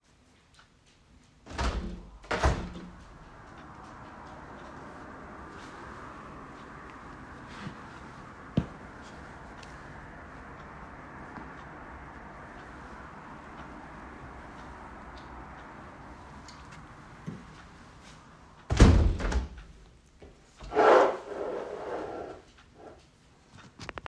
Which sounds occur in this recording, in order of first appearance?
window